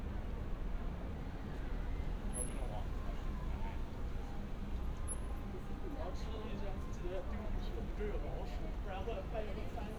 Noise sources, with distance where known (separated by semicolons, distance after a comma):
person or small group talking